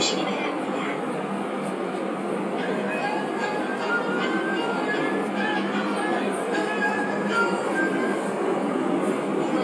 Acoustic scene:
subway train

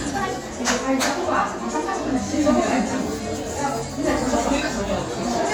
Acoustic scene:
crowded indoor space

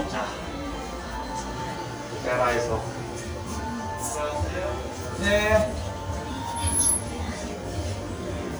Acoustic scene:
elevator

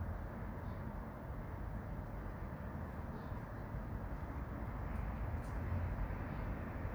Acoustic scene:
residential area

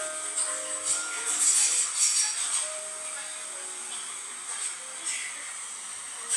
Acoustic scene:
cafe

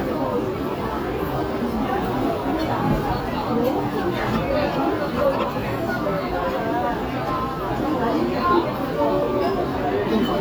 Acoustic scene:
restaurant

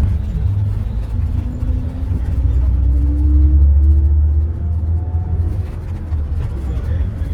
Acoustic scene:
bus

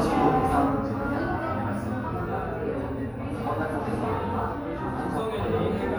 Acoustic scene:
crowded indoor space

